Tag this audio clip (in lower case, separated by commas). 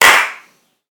clapping, hands